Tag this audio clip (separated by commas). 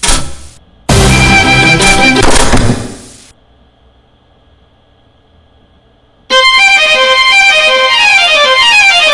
Music